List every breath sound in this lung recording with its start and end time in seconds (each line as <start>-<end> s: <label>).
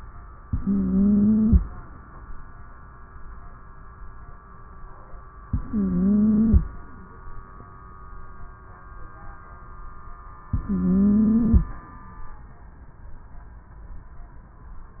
0.44-1.54 s: inhalation
0.44-1.54 s: wheeze
5.49-6.59 s: inhalation
5.49-6.59 s: wheeze
10.52-11.62 s: inhalation
10.52-11.62 s: wheeze